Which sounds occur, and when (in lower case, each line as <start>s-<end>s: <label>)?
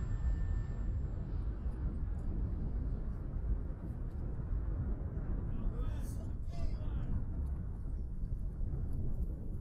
0.0s-0.9s: sound effect
0.0s-9.6s: wind
1.6s-1.7s: clicking
2.1s-2.2s: clicking
4.1s-4.2s: clicking
5.5s-6.3s: male speech
5.5s-7.2s: conversation
6.5s-7.1s: male speech
7.0s-7.1s: clicking
7.4s-7.5s: clicking
7.8s-7.9s: clicking
8.2s-8.3s: clicking
8.9s-8.9s: clicking